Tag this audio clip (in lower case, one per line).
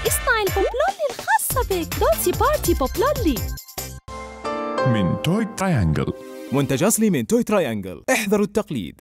music
speech